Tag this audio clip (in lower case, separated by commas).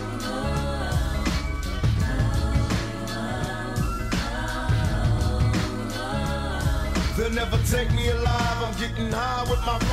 soul music